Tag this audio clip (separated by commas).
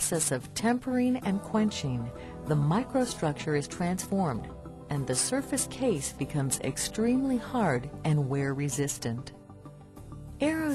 Speech, Music